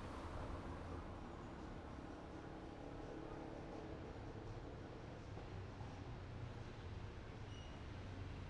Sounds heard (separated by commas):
music, motorcycle brakes, car wheels rolling, motorcycle, motorcycle engine idling, motorcycle engine accelerating, car